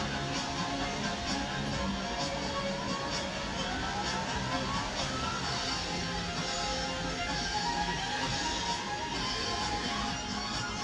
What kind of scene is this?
park